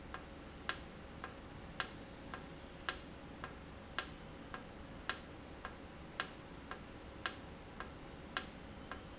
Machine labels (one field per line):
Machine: valve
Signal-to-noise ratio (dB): 6 dB